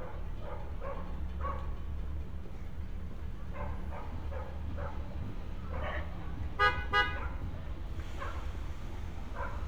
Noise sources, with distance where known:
car horn, near
dog barking or whining, far

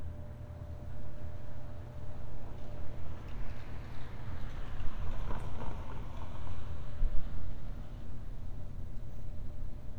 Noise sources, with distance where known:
engine of unclear size, far

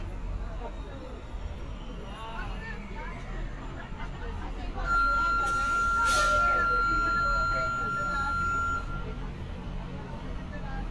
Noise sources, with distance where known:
unidentified alert signal, near
person or small group talking, near

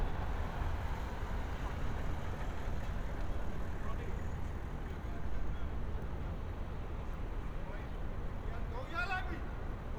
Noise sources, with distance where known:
person or small group shouting, far

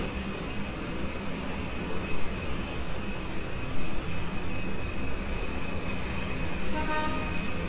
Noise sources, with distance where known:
car horn, far

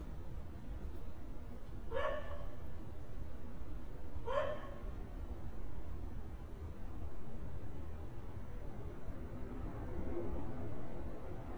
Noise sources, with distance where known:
dog barking or whining, near

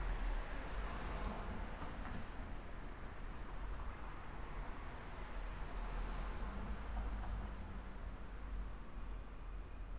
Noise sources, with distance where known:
background noise

